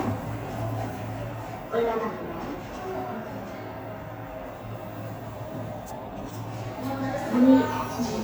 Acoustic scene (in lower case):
elevator